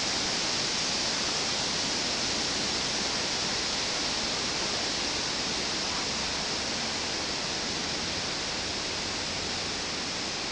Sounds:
wind, wind noise (microphone)

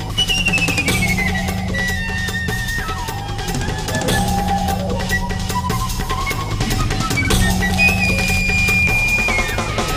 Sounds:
music

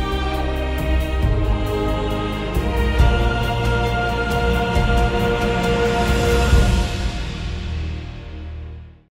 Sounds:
music

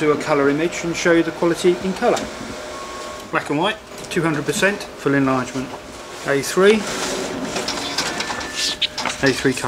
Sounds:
speech, printer

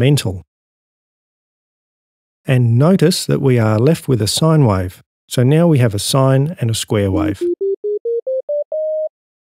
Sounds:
speech, synthesizer

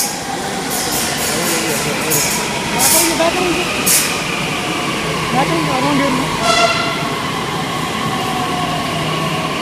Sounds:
metro

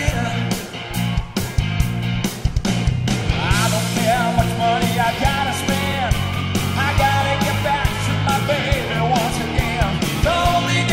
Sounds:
rock music, singing

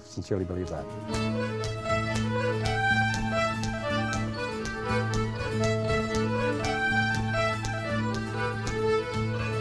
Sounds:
speech, music

